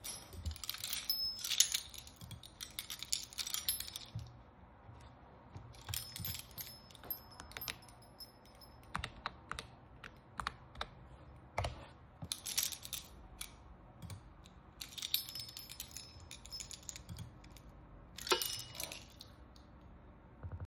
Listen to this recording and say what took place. I was sitting at my desk, searching for something on the internet. Typing on the keyboard and clicking the mouse, while fiddling with the keys with the hand I didn't use.